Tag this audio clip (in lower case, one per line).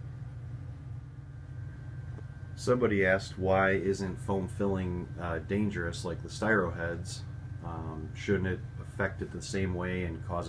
speech